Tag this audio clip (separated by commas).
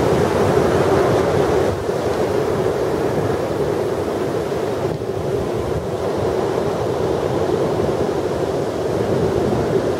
ocean burbling, Wind, Wind noise (microphone), Waves, Ocean